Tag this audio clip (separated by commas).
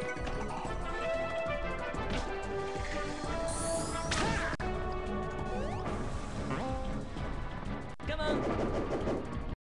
Music, Speech